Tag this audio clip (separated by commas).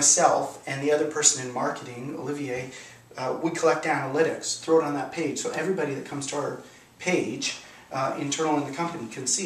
Speech